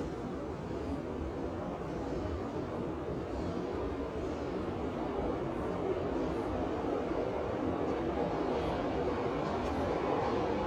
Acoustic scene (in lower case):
subway station